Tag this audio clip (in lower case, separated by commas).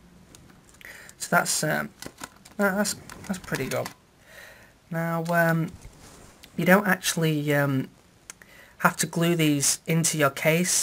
speech